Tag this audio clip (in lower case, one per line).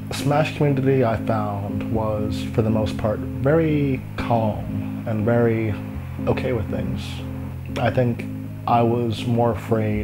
music
speech